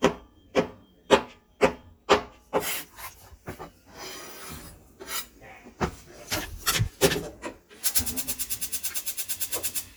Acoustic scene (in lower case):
kitchen